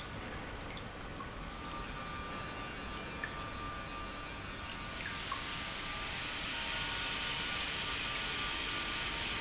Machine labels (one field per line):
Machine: pump